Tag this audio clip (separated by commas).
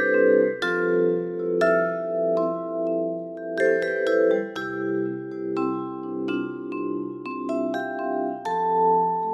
Glockenspiel, xylophone, Mallet percussion